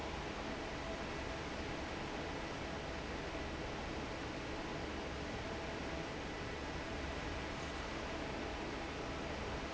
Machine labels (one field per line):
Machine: fan